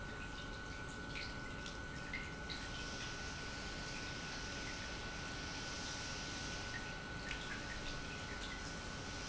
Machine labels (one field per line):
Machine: pump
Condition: normal